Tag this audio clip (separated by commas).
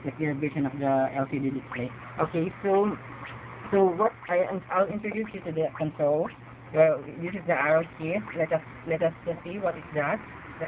Speech